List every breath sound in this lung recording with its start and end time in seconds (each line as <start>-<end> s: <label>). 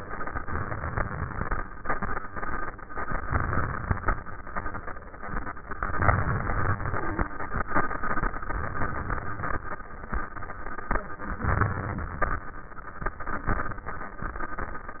0.38-1.43 s: inhalation
3.18-4.23 s: inhalation
5.97-7.33 s: inhalation
5.97-7.33 s: crackles
8.30-9.66 s: inhalation
11.40-12.51 s: crackles
11.46-12.51 s: inhalation